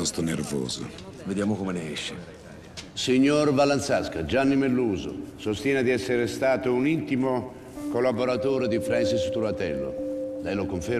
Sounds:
speech, music

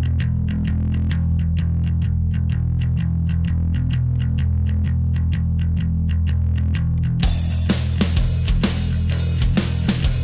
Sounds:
music, rock and roll

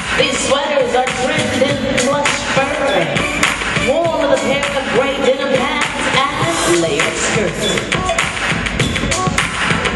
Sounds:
music, speech

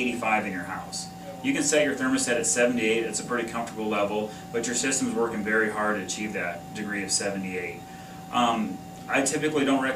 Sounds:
speech, air conditioning

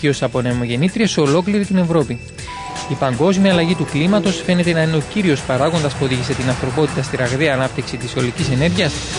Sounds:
speech, music

